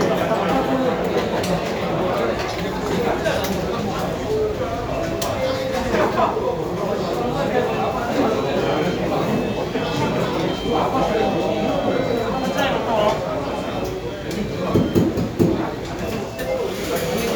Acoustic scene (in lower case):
cafe